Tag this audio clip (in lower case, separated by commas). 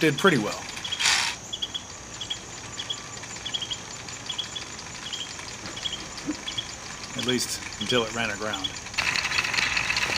speech